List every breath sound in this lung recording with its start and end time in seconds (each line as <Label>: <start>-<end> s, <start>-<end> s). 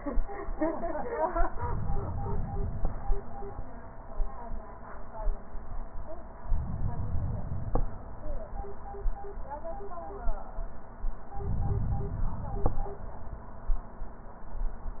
Inhalation: 1.52-2.94 s, 6.42-7.83 s, 11.33-12.74 s